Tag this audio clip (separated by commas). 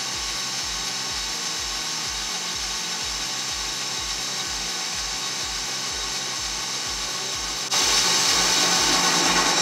Rub, Sawing